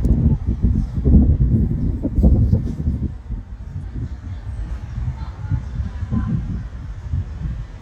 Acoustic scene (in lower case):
residential area